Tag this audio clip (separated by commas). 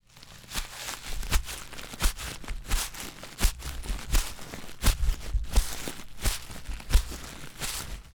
footsteps